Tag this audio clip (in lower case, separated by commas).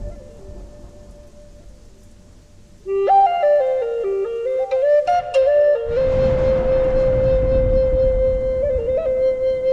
music, flute